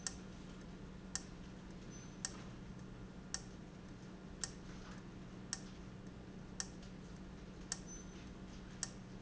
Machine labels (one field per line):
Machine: valve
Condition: abnormal